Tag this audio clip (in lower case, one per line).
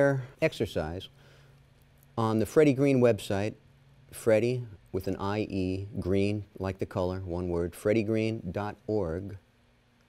speech